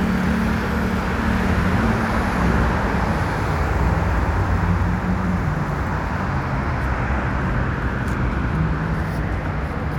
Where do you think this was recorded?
on a street